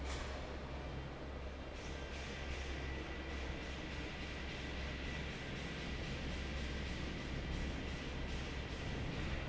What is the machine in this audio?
fan